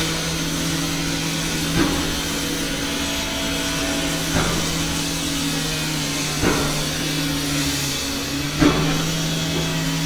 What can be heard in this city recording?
unidentified impact machinery, unidentified powered saw